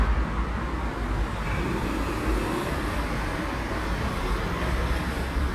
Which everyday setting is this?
street